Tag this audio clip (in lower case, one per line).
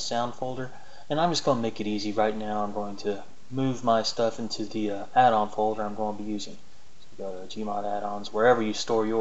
speech